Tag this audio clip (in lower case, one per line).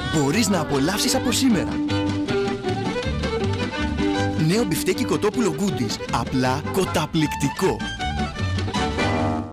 music
speech